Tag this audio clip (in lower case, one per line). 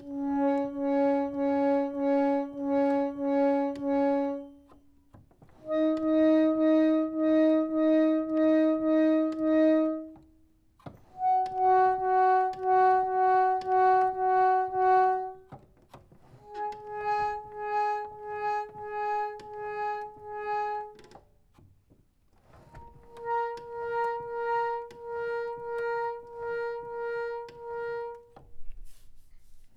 organ
music
keyboard (musical)
musical instrument